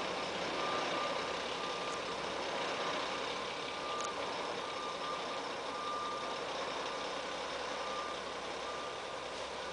A large truck motor is running and a beeping sound is occurring